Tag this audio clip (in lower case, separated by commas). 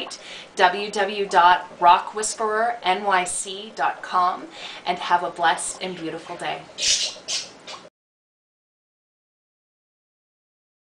inside a small room, speech